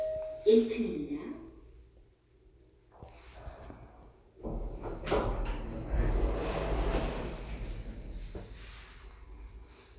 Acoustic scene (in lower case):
elevator